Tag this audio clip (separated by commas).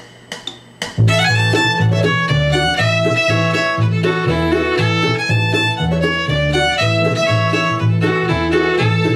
fiddle, Musical instrument, Music